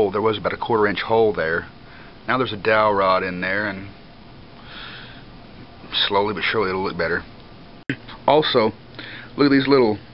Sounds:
Speech

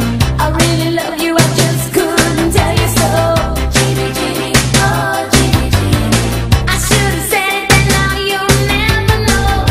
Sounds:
Exciting music, Music

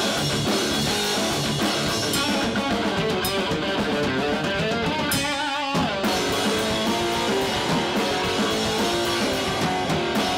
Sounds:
Drum roll, Bass drum, Drum, Drum kit, Rimshot, Snare drum, Percussion

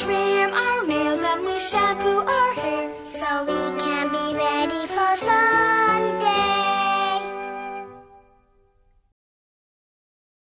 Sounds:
Music

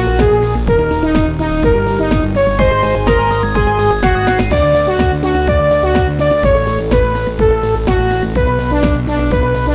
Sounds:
Music

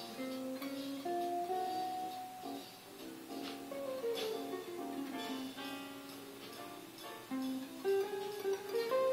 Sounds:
Music, inside a small room, Musical instrument

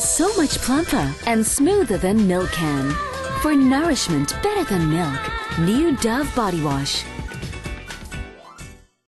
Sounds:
Music, Speech

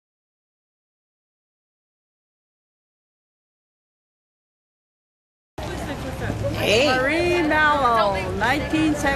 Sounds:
Silence, Speech, outside, urban or man-made, Hubbub

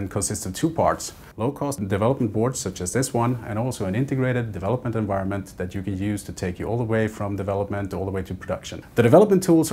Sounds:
Speech

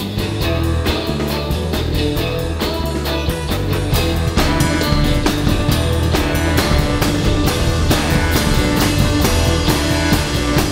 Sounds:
Percussion, Bass drum, Drum kit, Rimshot, Snare drum, Drum

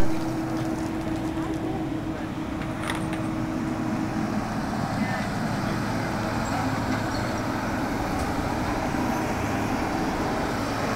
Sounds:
roadway noise, outside, urban or man-made, Speech, Vehicle

